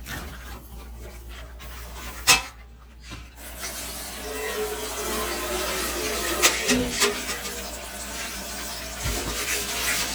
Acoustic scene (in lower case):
kitchen